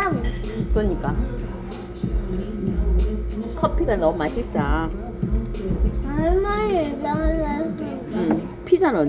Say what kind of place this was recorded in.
restaurant